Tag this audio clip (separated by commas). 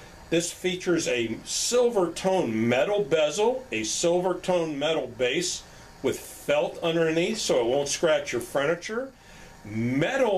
Speech